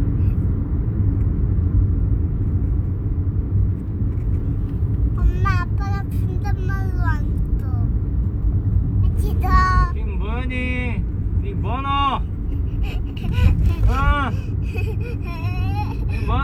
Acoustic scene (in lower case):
car